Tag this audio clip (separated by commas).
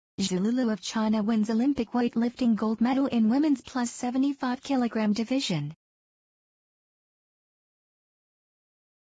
Speech